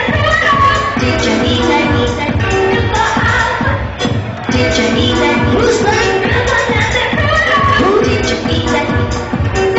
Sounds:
Music

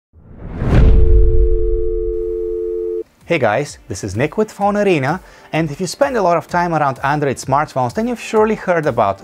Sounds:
Speech, inside a small room, Music

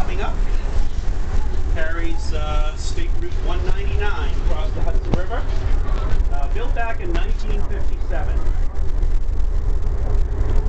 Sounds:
Vehicle, Speech

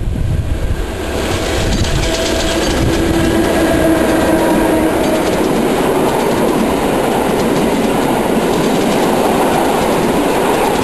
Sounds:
Rail transport, Train, Railroad car, Vehicle

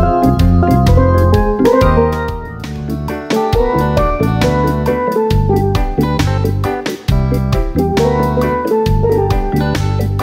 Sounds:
Drum, Rimshot, Percussion

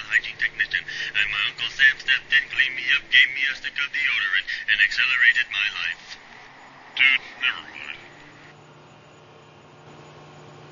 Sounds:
Speech

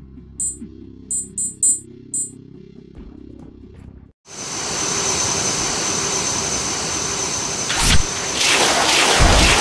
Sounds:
Music

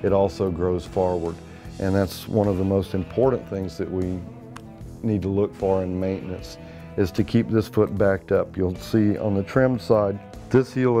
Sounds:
Music, Speech

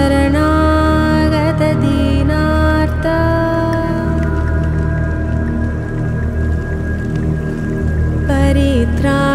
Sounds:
Music, Mantra

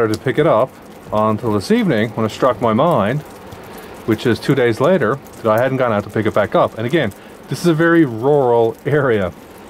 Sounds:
Speech

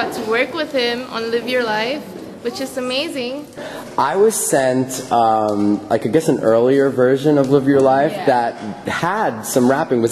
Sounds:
Female speech, Speech

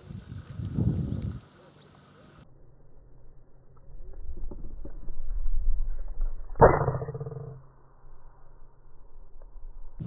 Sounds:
Bird

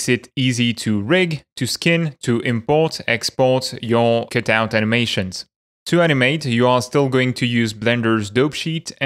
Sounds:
Speech

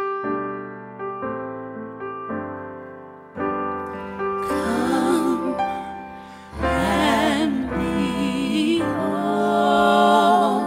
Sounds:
Music

